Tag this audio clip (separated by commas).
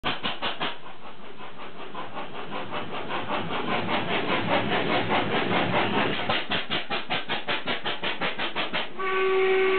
Engine, Steam whistle